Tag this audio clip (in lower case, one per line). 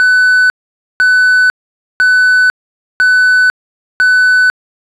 alarm